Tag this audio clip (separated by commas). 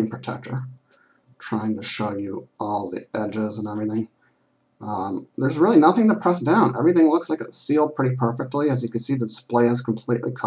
Speech